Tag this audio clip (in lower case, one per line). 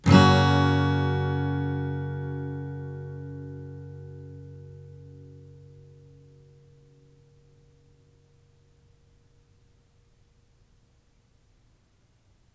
musical instrument
music
strum
guitar
plucked string instrument